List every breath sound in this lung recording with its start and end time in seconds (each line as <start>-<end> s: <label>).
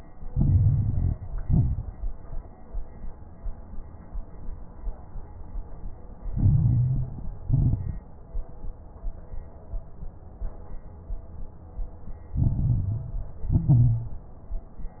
0.28-1.16 s: inhalation
0.28-1.16 s: crackles
1.41-2.16 s: exhalation
1.41-2.16 s: crackles
6.33-7.31 s: inhalation
6.33-7.31 s: crackles
7.43-8.07 s: exhalation
7.43-8.07 s: crackles
12.33-13.34 s: inhalation
12.33-13.34 s: crackles
13.41-14.23 s: exhalation
13.41-14.23 s: crackles